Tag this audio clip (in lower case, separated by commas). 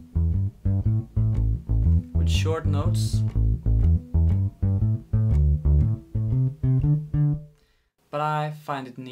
bass guitar, plucked string instrument, speech, guitar, musical instrument, music